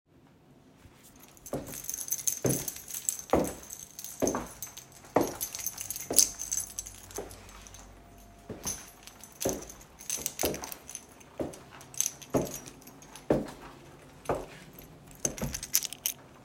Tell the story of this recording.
I walked through the hallway while holding my keys and lightly shaking the keychain.